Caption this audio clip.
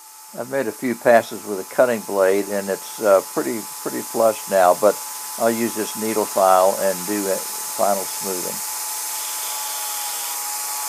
A male voice speaking along with a faint whirring sound